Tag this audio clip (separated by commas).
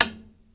Tap